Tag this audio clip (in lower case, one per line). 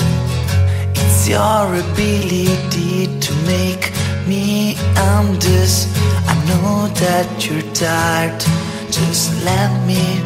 song
music
independent music
soul music